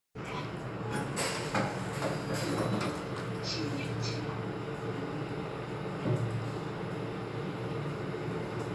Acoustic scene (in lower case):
elevator